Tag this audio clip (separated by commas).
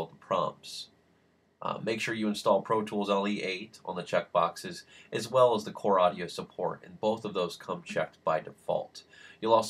Speech